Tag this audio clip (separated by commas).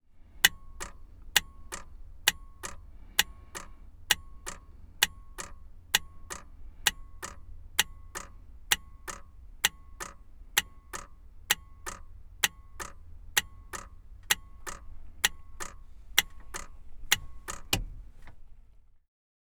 Motor vehicle (road), Vehicle